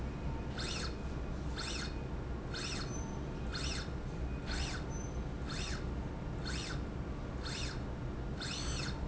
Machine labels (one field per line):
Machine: slide rail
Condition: normal